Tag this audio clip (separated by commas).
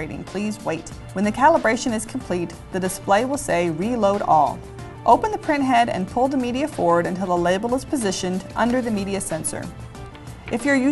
Speech, Music